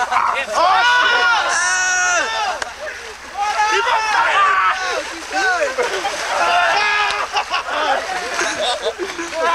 Loud excited male voices, laughing, talking, shrieking, with sounds of splashing water